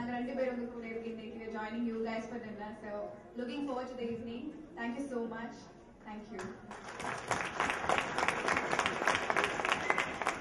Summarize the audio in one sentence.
A woman is giving a speech and people clap